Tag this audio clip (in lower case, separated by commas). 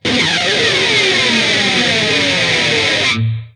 musical instrument, guitar, plucked string instrument, music